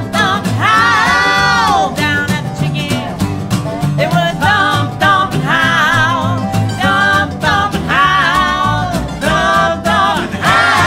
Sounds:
country, musical instrument, bowed string instrument, singing, guitar, music

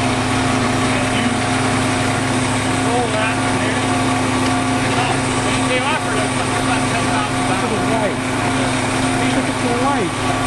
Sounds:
truck, medium engine (mid frequency), speech, idling, vehicle

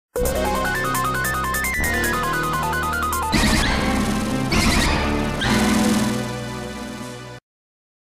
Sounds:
music

